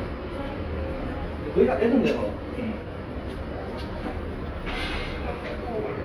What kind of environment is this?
subway station